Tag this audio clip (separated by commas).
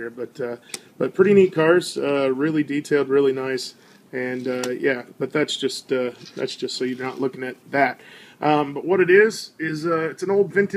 Speech